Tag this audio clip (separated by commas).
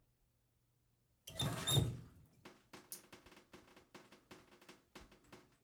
Liquid, Drip